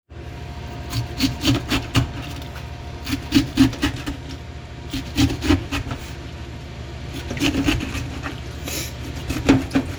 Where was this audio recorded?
in a kitchen